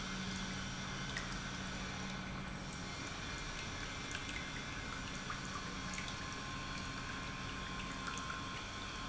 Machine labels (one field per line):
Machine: pump